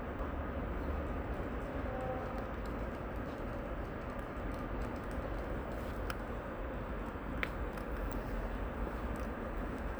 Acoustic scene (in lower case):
residential area